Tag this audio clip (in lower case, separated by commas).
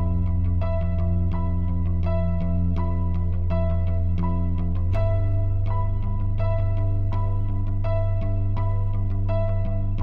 music